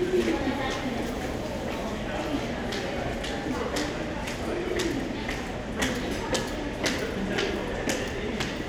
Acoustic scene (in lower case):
crowded indoor space